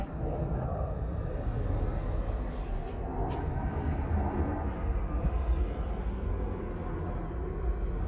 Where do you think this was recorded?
in a residential area